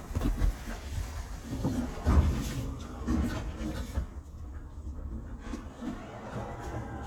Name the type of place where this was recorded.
elevator